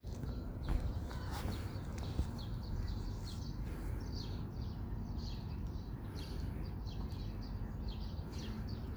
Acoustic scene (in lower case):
park